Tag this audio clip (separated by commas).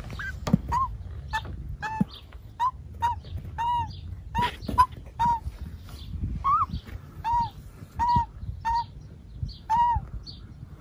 magpie calling